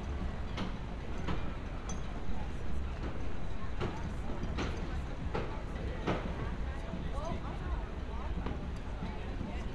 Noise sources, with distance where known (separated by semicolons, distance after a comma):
non-machinery impact; person or small group talking, far